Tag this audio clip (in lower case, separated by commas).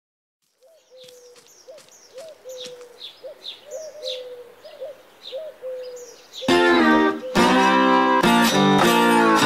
outside, rural or natural, bird call, music, tweet